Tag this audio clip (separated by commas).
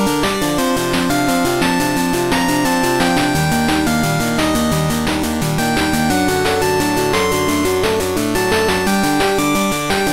Music